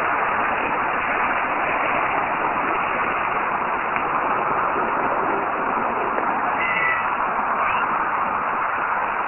Wind blows hard, a cat meows